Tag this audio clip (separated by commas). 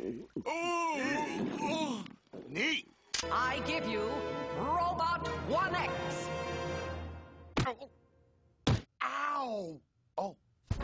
Speech, Music